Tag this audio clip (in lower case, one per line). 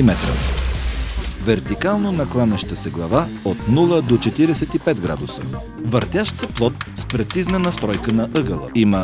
speech
tools
music